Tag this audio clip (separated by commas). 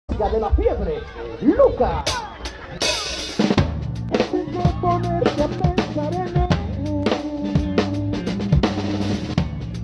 Drum roll, Rimshot, Bass drum, Drum kit, Snare drum, Percussion, Drum